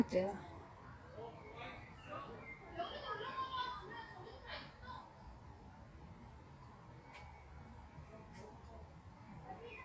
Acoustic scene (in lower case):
park